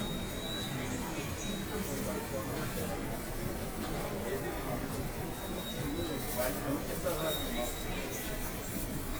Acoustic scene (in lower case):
subway station